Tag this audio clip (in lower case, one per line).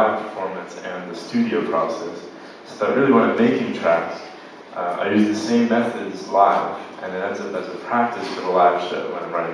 speech